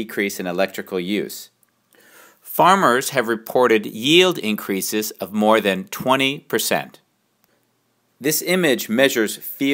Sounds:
speech

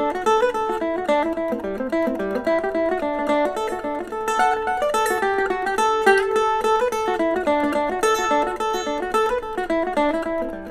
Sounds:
mandolin, music

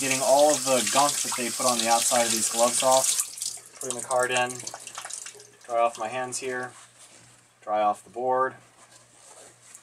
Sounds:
drip, liquid, speech

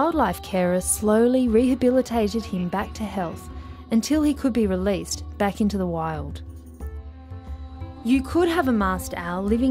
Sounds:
music, speech

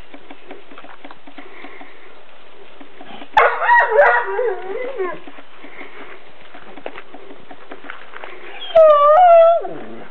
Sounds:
pets, dog, animal

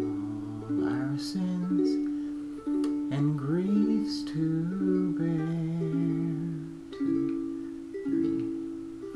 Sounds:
plucked string instrument, music, inside a small room, singing, musical instrument, ukulele

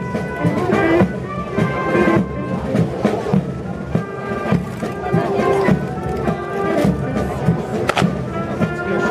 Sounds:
people marching

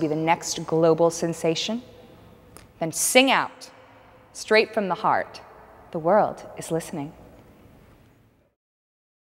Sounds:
speech

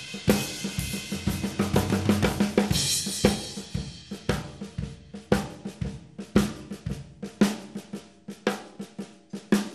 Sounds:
musical instrument, drum kit, cymbal, percussion, music, drum

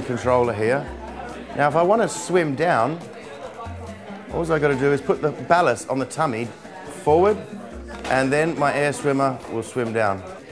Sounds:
speech, music

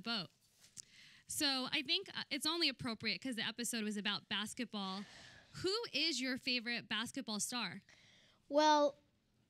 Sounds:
speech

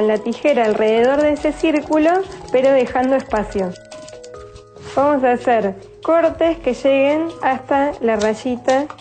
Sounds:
music, speech

